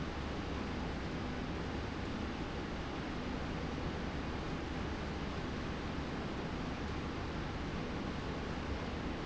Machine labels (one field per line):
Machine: slide rail